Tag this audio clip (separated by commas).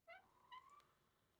Door, home sounds, Squeak